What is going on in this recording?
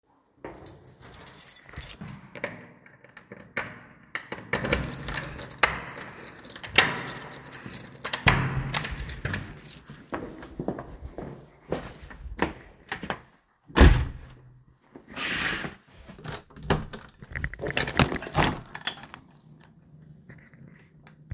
I took out my keys and opened the door, then closed it. After that, I walked to the window, opened the curtains, and opened the window.